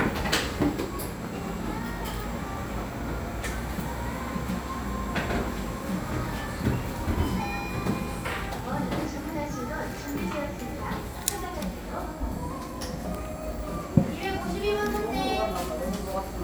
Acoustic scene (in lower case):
cafe